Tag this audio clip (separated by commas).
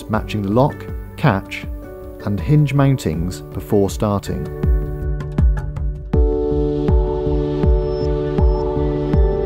Speech, Music